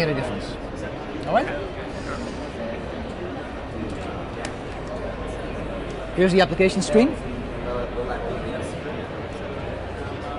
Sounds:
Speech

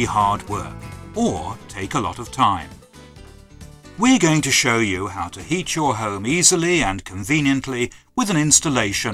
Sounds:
Music, Speech

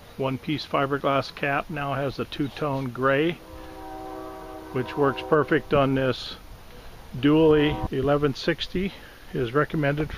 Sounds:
Speech

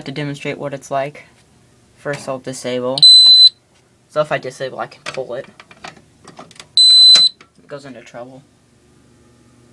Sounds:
Speech, inside a small room, Fire alarm

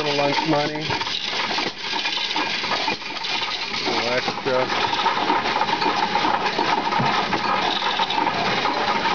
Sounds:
Coin (dropping)

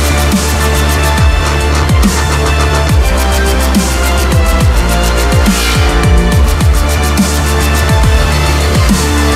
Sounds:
Music, Dubstep

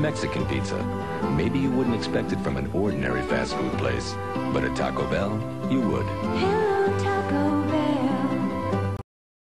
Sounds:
Speech, Music

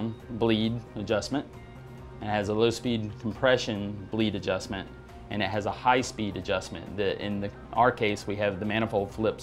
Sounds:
Speech, Music

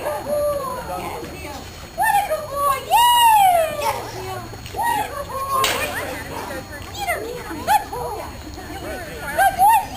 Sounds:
Speech

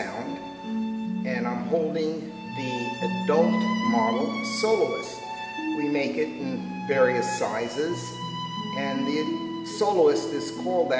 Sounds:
Musical instrument, Speech, Music, fiddle

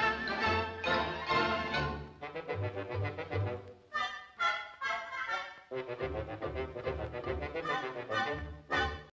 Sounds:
Music

